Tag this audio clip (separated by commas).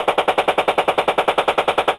Explosion, Gunshot